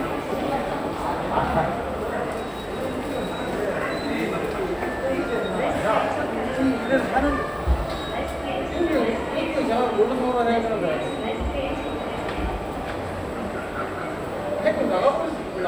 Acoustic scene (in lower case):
subway station